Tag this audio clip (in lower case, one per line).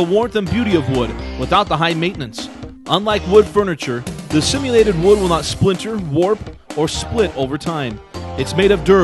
music
speech